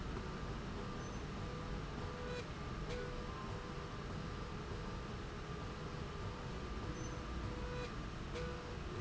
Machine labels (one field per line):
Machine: slide rail